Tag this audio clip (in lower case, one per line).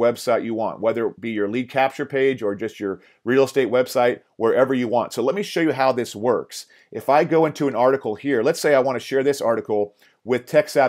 speech